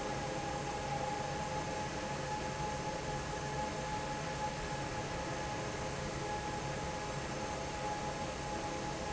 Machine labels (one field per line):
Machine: fan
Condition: normal